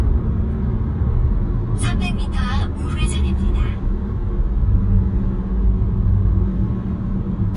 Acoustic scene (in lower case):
car